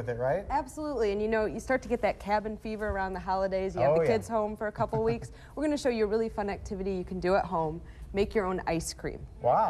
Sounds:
Speech

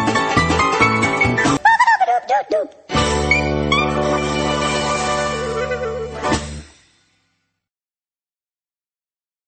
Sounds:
Music

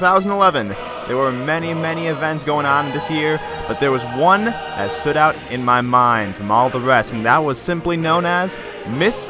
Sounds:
Speech, Music

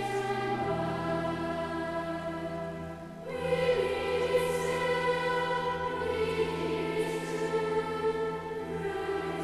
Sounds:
Music

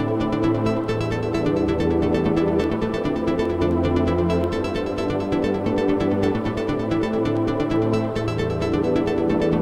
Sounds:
Music, Sound effect

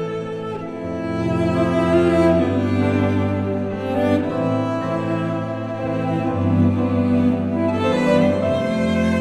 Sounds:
playing cello

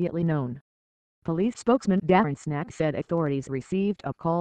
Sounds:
Speech

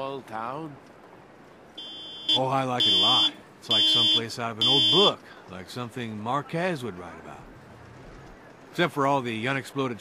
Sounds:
Speech

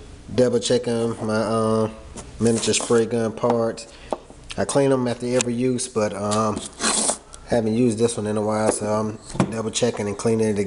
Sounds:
Rub

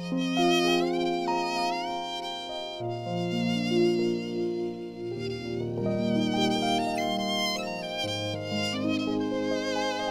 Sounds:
Musical instrument, fiddle, Music

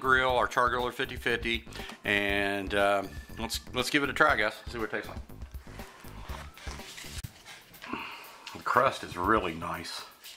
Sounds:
Speech

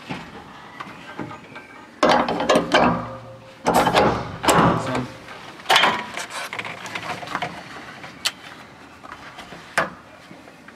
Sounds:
Speech

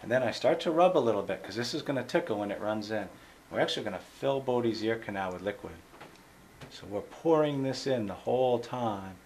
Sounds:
Speech

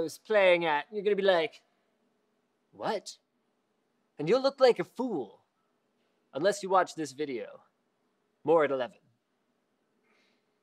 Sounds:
Speech

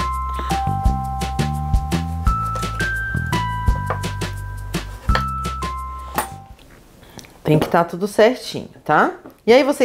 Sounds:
chopping food

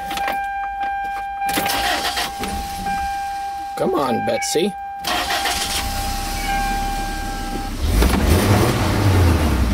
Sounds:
Car, Speech, Vehicle

